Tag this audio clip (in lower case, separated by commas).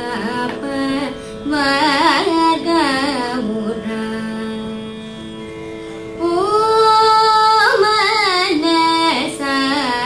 traditional music, music